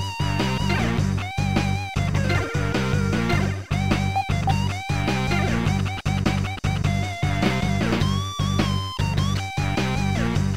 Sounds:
Music, Rock and roll

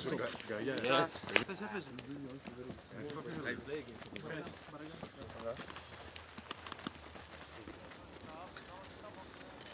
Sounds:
Speech

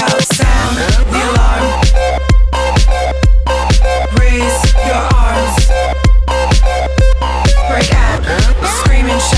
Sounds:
Music

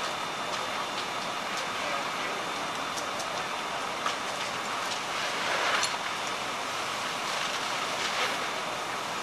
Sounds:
Crackle

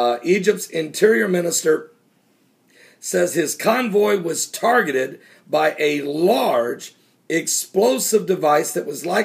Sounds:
Speech

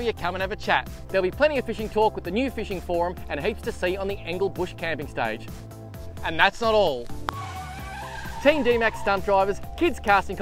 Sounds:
Speech, Music

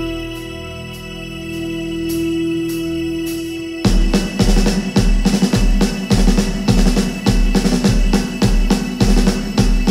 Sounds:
Music

